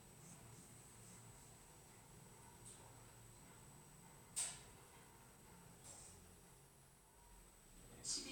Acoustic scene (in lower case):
elevator